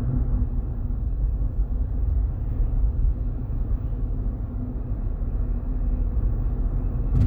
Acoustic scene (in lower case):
car